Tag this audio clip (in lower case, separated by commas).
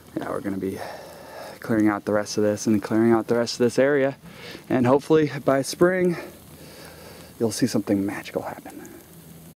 speech